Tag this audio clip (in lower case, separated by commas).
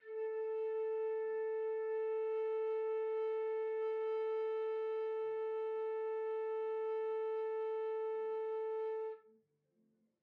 music, wind instrument, musical instrument